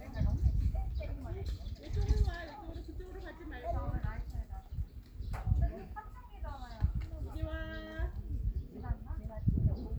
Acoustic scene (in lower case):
park